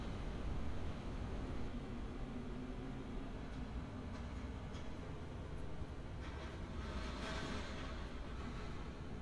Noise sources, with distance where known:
background noise

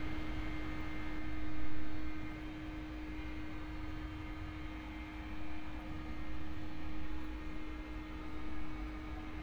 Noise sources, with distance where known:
car horn, far

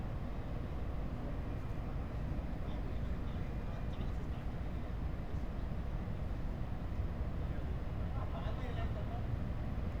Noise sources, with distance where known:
person or small group talking, far

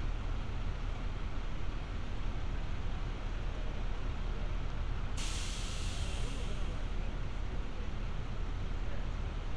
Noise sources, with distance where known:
large-sounding engine, near

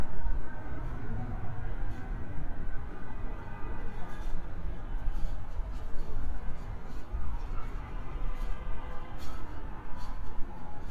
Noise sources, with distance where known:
car horn, far

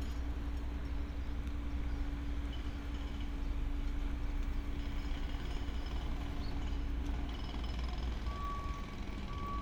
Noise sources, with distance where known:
engine of unclear size; jackhammer, far; unidentified alert signal

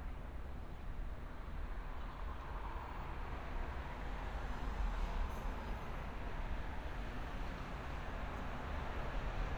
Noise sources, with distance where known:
background noise

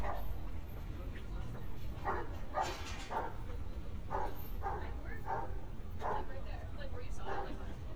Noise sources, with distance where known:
person or small group talking, near; dog barking or whining, far

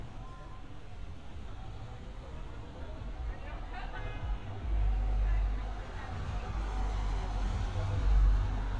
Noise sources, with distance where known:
car horn, far

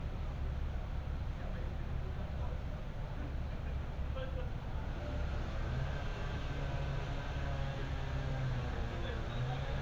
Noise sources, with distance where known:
unidentified powered saw, far; person or small group talking, far

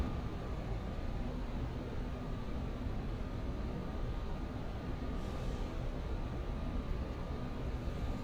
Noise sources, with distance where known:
large-sounding engine

